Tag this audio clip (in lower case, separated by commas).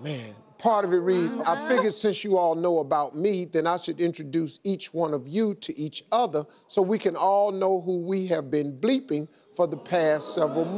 speech